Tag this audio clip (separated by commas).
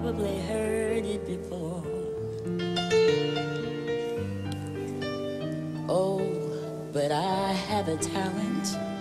Music